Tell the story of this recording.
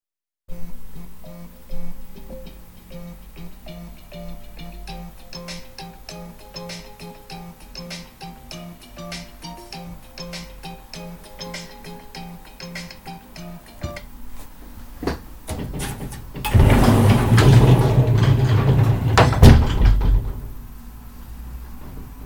My phone started ringing and I opened the wardrobe.